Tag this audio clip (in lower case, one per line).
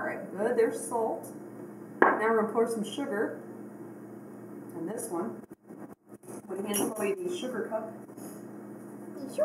child speech
inside a small room
speech